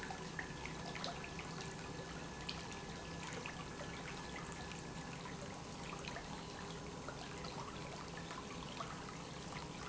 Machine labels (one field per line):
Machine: pump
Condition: normal